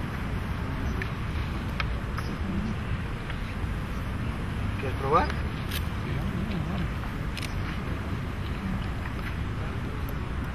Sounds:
Speech

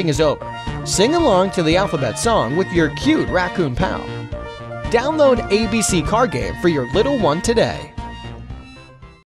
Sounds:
Speech, Music

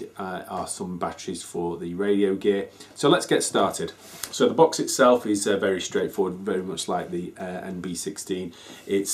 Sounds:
Speech

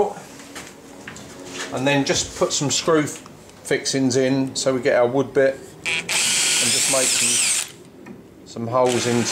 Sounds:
Speech

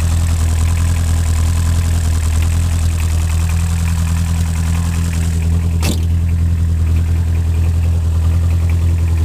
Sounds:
Vehicle

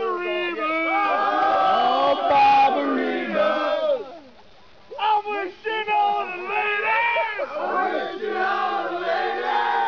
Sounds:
Speech

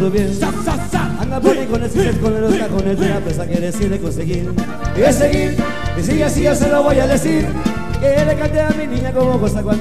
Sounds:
Music

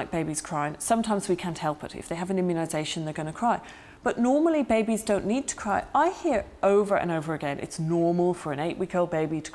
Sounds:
Speech

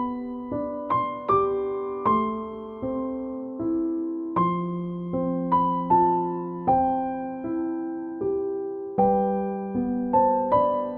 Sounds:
Music

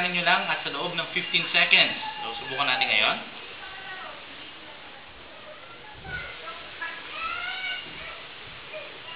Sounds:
Speech

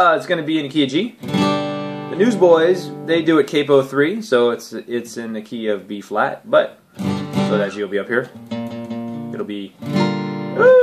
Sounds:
Guitar, Strum, Speech, Musical instrument, Music, Plucked string instrument

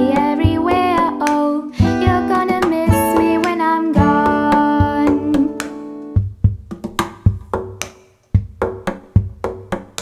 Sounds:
Musical instrument, Tapping (guitar technique), Strum, Plucked string instrument, Guitar, Music, Acoustic guitar, Wood block

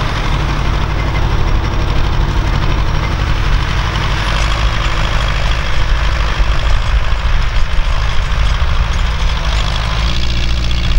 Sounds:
Engine, Idling, Vehicle

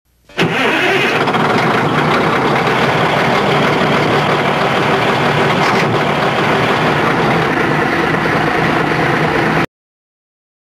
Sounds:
Vehicle

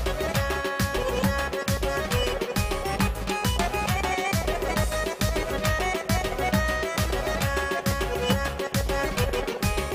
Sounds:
Music

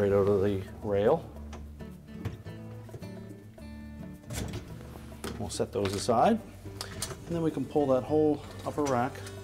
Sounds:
Speech, Music

